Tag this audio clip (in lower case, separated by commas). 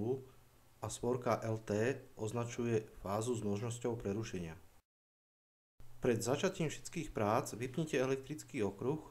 speech